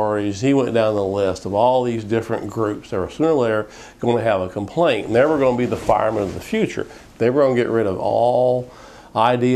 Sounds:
Speech, man speaking

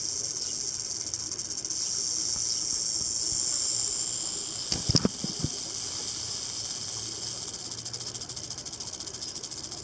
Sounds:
snake rattling

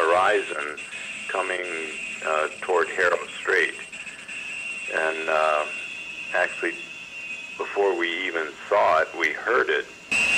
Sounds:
Speech

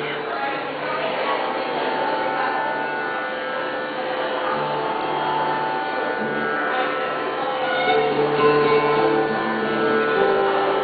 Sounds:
Music, Musical instrument

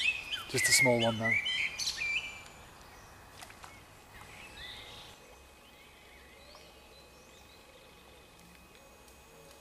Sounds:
tweeting, Bird vocalization, Bird, tweet

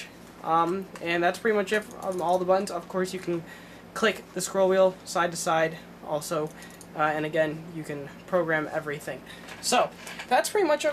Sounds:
Speech, inside a small room

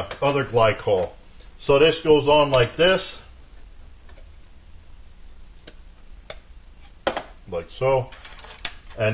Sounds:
Speech

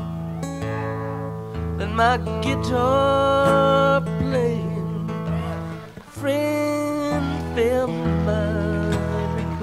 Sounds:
Country, Guitar, Musical instrument, Music, Plucked string instrument

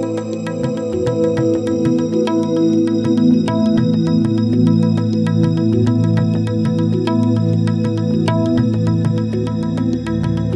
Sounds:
Music

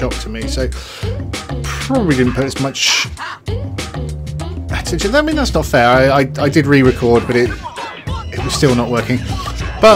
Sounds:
Music, Speech

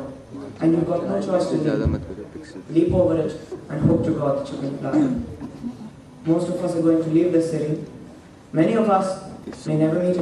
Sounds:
Male speech, monologue, Speech

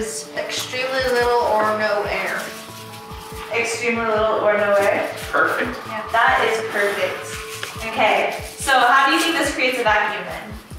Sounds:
Speech, Music

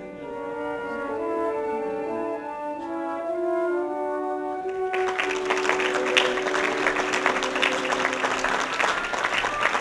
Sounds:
Music, Classical music

